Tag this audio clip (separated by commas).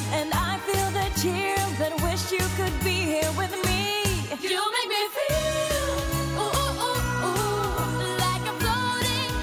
Music of Asia, Music